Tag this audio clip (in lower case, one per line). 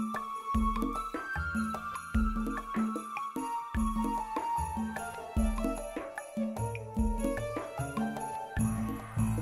music